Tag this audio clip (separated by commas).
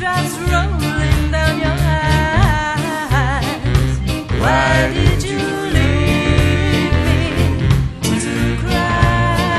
Music, Ska